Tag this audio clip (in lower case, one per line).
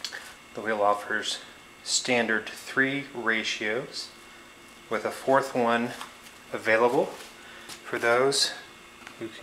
speech